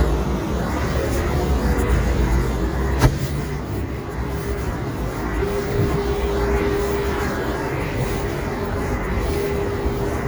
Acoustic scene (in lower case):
street